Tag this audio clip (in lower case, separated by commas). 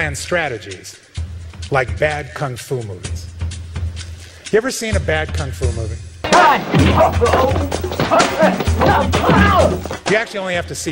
music, speech, man speaking, monologue